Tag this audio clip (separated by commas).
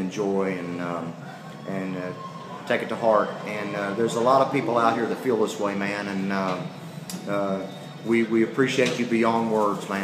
Speech